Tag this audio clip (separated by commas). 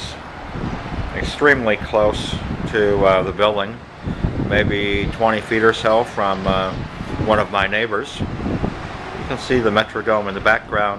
Speech